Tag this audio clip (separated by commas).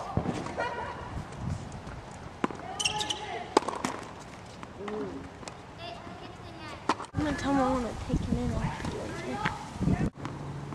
playing tennis, Speech